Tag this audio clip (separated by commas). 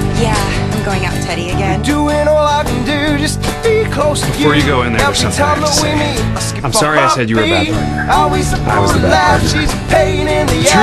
Music, Speech